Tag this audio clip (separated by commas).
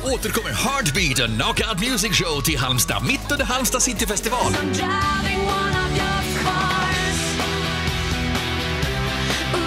Music, Speech